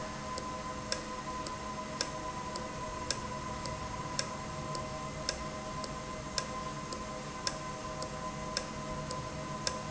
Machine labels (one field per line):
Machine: valve